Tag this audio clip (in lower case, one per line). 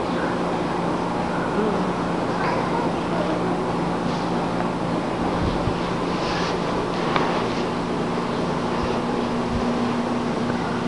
speech
animal
pets